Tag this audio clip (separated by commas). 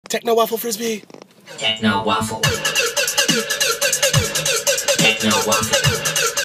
Electronic music, Music, Techno, Speech